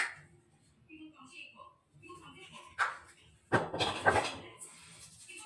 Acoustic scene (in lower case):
restroom